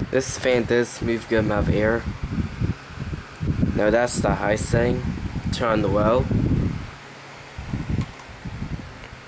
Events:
0.0s-9.2s: mechanical fan
0.1s-2.0s: man speaking
3.3s-5.0s: man speaking
5.5s-7.0s: man speaking
7.5s-8.1s: generic impact sounds

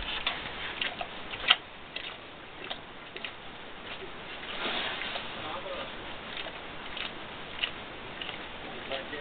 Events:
0.0s-9.2s: background noise
0.1s-0.3s: generic impact sounds
0.8s-0.9s: generic impact sounds
1.0s-1.1s: generic impact sounds
1.3s-1.6s: generic impact sounds
1.9s-2.1s: generic impact sounds
2.6s-2.8s: generic impact sounds
3.1s-3.3s: tick
3.9s-4.0s: generic impact sounds
5.0s-5.0s: tick
5.1s-5.2s: generic impact sounds
5.5s-9.2s: conversation
5.5s-5.9s: man speaking
6.3s-6.5s: generic impact sounds
6.9s-7.1s: generic impact sounds
7.6s-7.7s: generic impact sounds
8.2s-8.3s: generic impact sounds
8.9s-9.0s: generic impact sounds

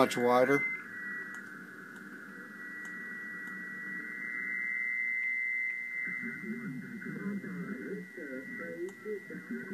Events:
0.0s-0.6s: man speaking
0.6s-9.7s: static

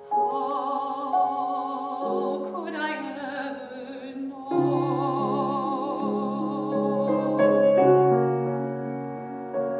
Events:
0.0s-9.7s: background noise
0.0s-9.7s: music
0.2s-7.8s: woman speaking
0.5s-0.5s: clicking
6.6s-6.7s: clicking

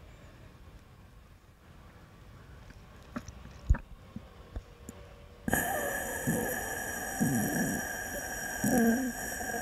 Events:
0.0s-9.6s: wind
3.0s-3.3s: human sounds
3.5s-3.9s: human sounds
4.1s-4.3s: human sounds
4.5s-4.7s: human sounds
4.8s-5.0s: human sounds
5.5s-9.6s: breathing
6.3s-6.7s: human sounds
7.2s-7.8s: human sounds
8.7s-9.2s: human sounds

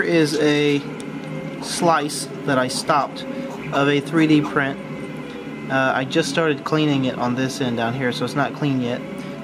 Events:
0.0s-9.4s: mechanisms
0.0s-0.8s: male speech
1.5s-2.2s: male speech
2.4s-3.1s: male speech
3.6s-4.9s: male speech
5.7s-9.0s: male speech

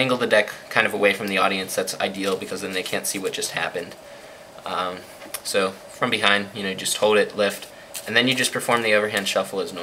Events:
0.0s-0.5s: man speaking
0.0s-9.8s: mechanisms
0.7s-3.9s: man speaking
1.2s-1.3s: tick
2.1s-3.5s: shuffling cards
2.2s-2.3s: generic impact sounds
2.8s-3.0s: generic impact sounds
4.0s-4.6s: breathing
4.6s-5.0s: man speaking
4.9s-5.2s: surface contact
5.2s-5.4s: tick
5.4s-5.7s: man speaking
5.9s-6.0s: surface contact
5.9s-7.6s: man speaking
7.2s-7.3s: tick
7.3s-9.8s: shuffling cards
7.7s-7.9s: breathing
7.9s-9.8s: man speaking

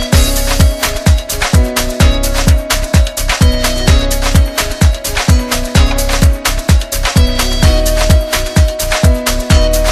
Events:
0.0s-9.9s: music

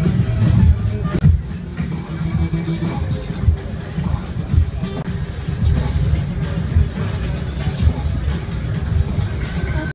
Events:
0.0s-9.9s: music

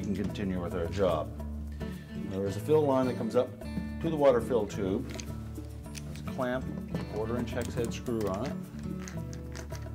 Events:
0.0s-1.2s: male speech
0.0s-9.9s: music
1.8s-2.0s: breathing
2.2s-3.4s: male speech
4.0s-5.1s: male speech
5.0s-5.4s: generic impact sounds
5.9s-6.3s: generic impact sounds
6.2s-6.6s: male speech
7.0s-8.6s: male speech
7.4s-8.5s: generic impact sounds
8.8s-9.4s: generic impact sounds
9.5s-9.9s: generic impact sounds

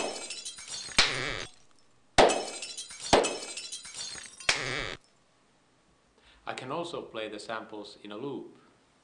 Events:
0.0s-0.9s: shatter
0.0s-9.0s: background noise
0.9s-1.1s: clapping
0.9s-1.4s: squeak
1.3s-1.8s: shatter
2.1s-2.6s: clapping
2.2s-4.4s: shatter
3.1s-3.5s: clapping
4.4s-4.6s: clapping
4.5s-4.9s: squeak
6.1s-6.4s: breathing
6.4s-8.4s: male speech
8.4s-9.0s: surface contact

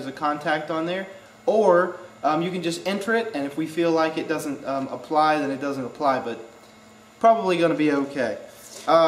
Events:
0.0s-1.1s: man speaking
0.0s-9.0s: mechanisms
1.4s-1.9s: man speaking
2.2s-6.5s: man speaking
6.6s-6.9s: breathing
7.2s-8.4s: man speaking
8.5s-8.8s: breathing

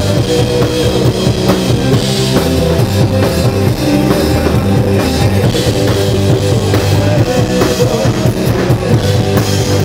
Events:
0.0s-9.8s: male singing
0.0s-9.8s: music

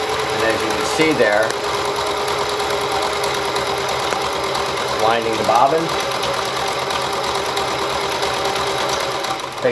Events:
0.0s-9.7s: sewing machine
0.4s-0.8s: male speech
0.9s-1.5s: male speech
4.9s-5.9s: male speech

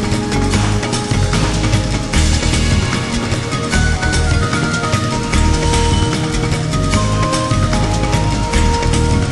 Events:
0.0s-9.3s: music

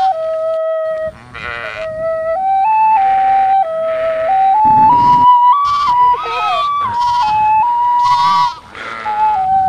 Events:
0.0s-9.6s: wind
0.0s-9.6s: music
1.0s-2.2s: wind noise (microphone)
1.2s-2.0s: bleat
2.8s-3.4s: wind noise (microphone)
2.9s-3.5s: bleat
3.9s-5.3s: wind noise (microphone)
3.9s-4.6s: bleat
5.6s-5.9s: bleat
5.8s-6.2s: wind noise (microphone)
6.1s-7.4s: bleat
6.9s-7.6s: wind noise (microphone)
8.0s-8.6s: bleat
8.0s-8.5s: wind noise (microphone)
9.1s-9.6s: wind noise (microphone)

